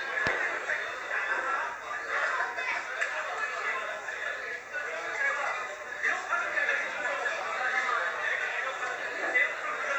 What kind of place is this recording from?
crowded indoor space